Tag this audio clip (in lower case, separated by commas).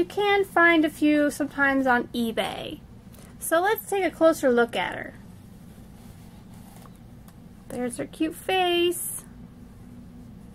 inside a small room, speech